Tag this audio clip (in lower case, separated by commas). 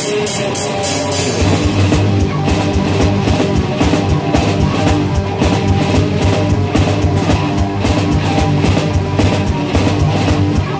rock music, music, cymbal, drum kit, percussion, musical instrument, heavy metal, drum